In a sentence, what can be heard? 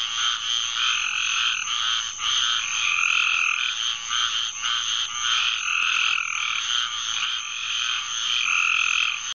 Frogs croaking and crickets chirping